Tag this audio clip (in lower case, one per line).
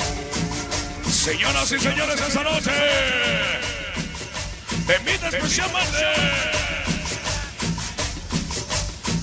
music